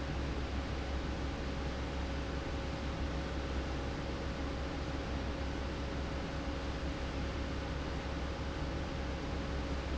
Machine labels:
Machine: fan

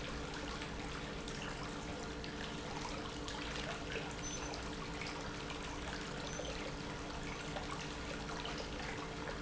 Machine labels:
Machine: pump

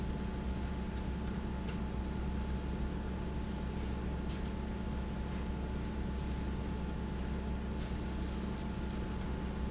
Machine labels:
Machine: fan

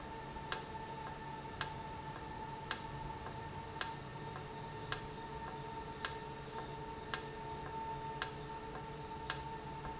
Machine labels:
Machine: valve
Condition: normal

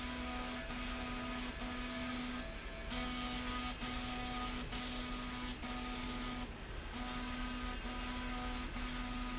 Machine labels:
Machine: slide rail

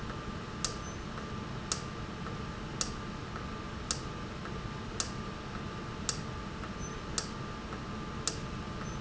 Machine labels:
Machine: valve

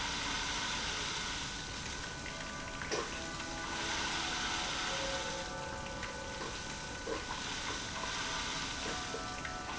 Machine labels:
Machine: pump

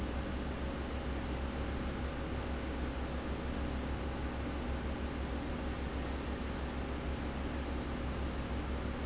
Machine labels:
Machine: fan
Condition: abnormal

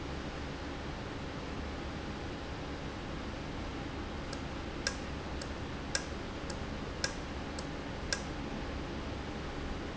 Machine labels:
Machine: valve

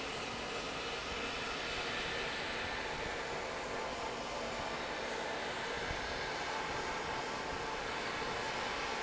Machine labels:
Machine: fan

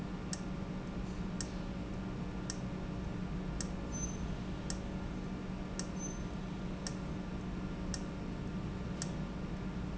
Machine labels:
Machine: valve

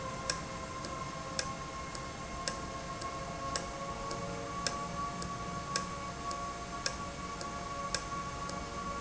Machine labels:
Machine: valve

